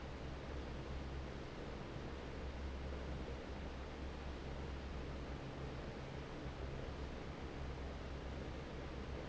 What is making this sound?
fan